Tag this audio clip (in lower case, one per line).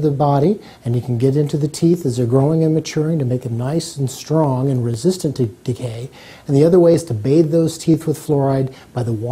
speech